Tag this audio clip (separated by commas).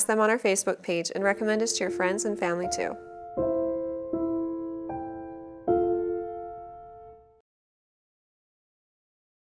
Speech, Music